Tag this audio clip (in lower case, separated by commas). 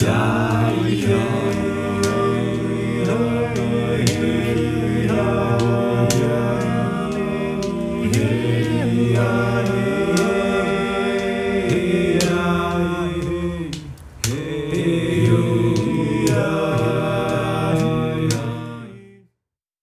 human voice, singing